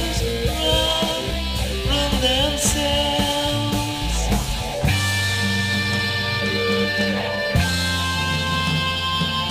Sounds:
singing, music, roll

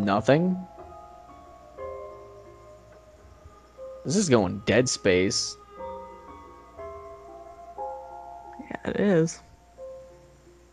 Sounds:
speech, music

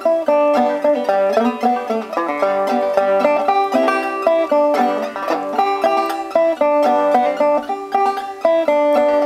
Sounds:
music

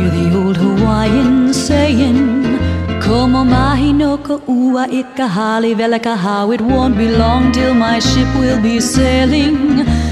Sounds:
happy music, music

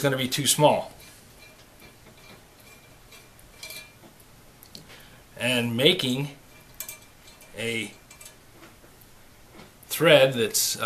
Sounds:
speech, tools, inside a small room

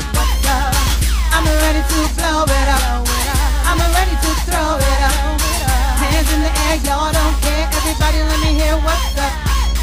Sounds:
music

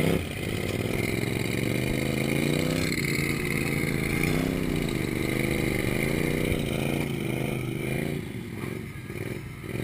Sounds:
vehicle

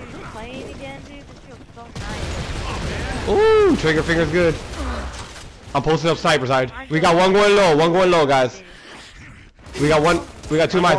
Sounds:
speech

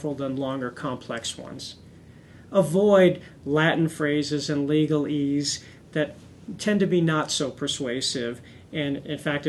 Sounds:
speech

